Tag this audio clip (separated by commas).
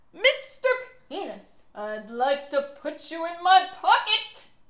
Human voice, woman speaking, Speech